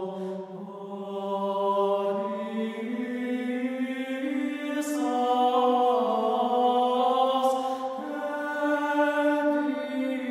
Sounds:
Mantra

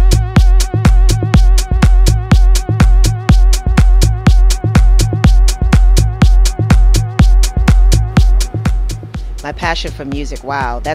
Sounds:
Speech, Music

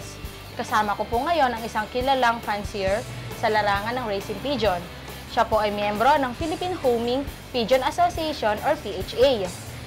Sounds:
Music, Speech

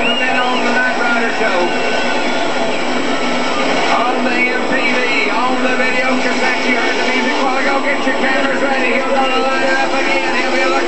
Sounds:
Speech, Air brake

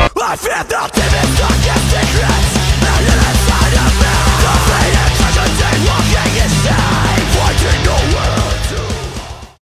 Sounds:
Music, Angry music, Exciting music

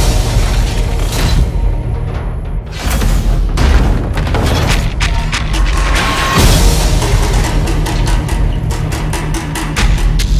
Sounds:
Music

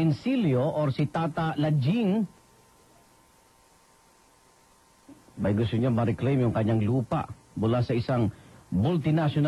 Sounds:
Speech, Radio

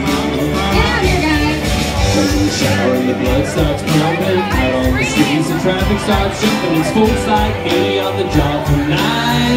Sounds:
Music

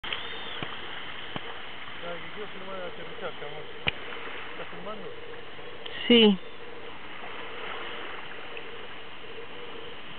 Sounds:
Aircraft, Speech

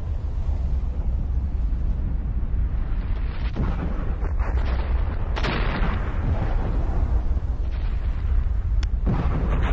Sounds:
volcano explosion

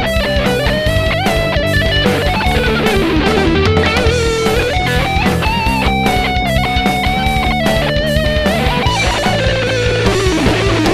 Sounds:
Music, playing electric guitar, Plucked string instrument, Musical instrument, Electric guitar, Guitar

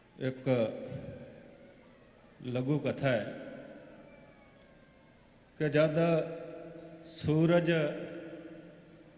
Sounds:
Speech, Male speech, monologue

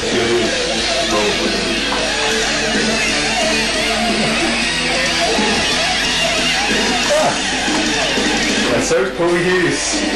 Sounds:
Music, Speech

